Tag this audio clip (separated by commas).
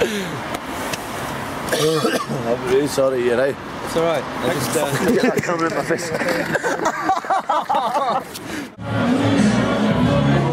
Speech, Music